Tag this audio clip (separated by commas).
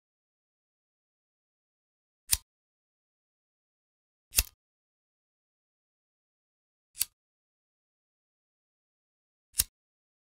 strike lighter